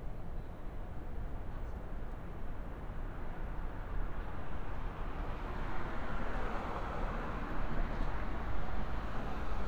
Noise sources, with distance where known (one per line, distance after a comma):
engine of unclear size